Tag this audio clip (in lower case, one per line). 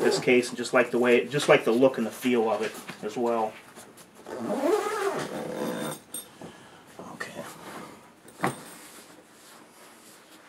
speech
inside a small room